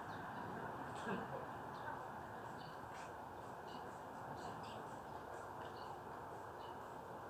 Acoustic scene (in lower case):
residential area